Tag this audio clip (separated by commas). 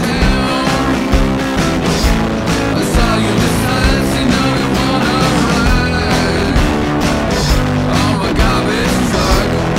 Music